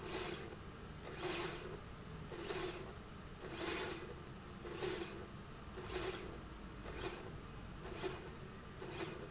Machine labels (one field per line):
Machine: slide rail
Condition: normal